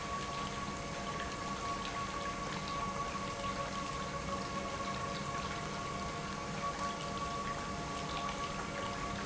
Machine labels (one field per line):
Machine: pump